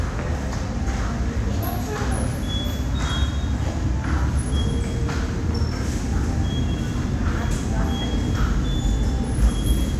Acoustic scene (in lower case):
subway station